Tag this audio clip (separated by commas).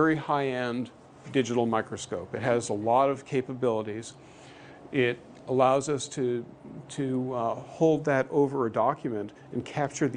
Speech